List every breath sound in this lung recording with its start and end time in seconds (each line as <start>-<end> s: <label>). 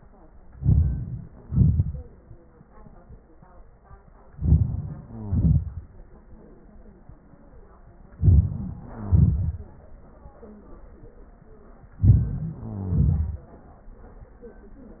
0.50-1.46 s: inhalation
1.44-2.40 s: exhalation
4.32-5.04 s: inhalation
5.03-5.60 s: crackles
5.04-5.88 s: exhalation
8.19-8.80 s: inhalation
8.81-9.75 s: exhalation
8.95-9.42 s: crackles
12.00-12.53 s: inhalation
12.52-13.50 s: exhalation
12.62-13.27 s: crackles